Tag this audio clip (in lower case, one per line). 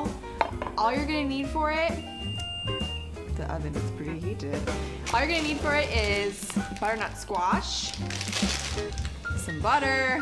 speech
music